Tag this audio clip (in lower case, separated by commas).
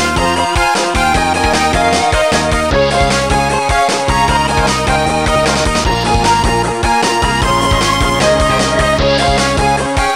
blues, music, rhythm and blues